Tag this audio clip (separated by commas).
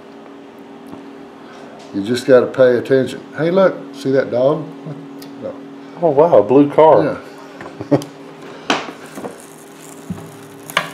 Speech